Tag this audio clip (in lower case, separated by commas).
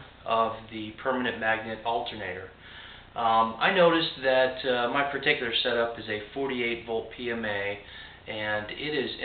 speech